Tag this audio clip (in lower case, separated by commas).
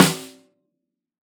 percussion, drum, musical instrument, music, snare drum